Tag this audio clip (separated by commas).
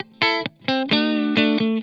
Music, Guitar, Musical instrument, Electric guitar, Plucked string instrument